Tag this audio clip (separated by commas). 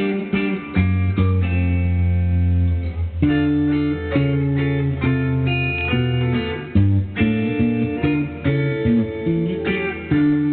Music